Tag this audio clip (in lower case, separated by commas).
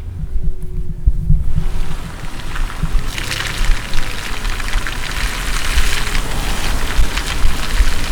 vehicle, motor vehicle (road), car